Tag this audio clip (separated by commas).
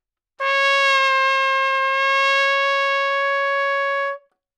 Musical instrument, Brass instrument, Trumpet, Music